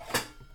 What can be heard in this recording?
wooden cupboard opening